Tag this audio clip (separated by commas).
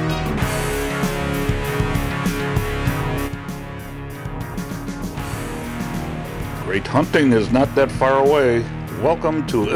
Speech, Music